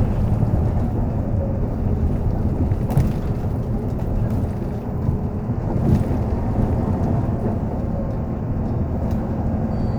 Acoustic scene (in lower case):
bus